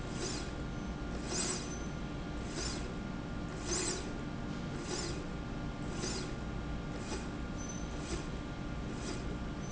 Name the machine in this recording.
slide rail